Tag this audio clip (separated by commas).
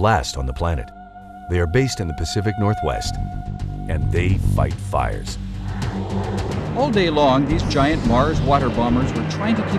Music, Speech